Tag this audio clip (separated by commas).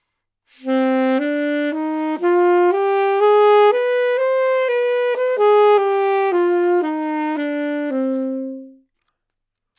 Musical instrument, Music, Wind instrument